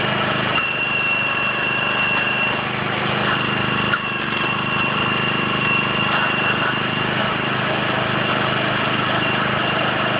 Tools running and working